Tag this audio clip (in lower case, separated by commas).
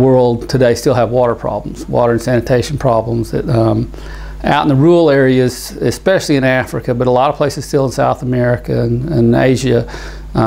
speech